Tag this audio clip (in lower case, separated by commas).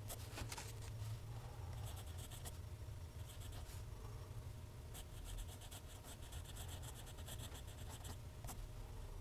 writing